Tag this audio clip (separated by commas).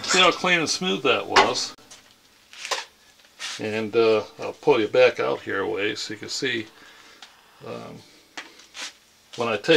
Speech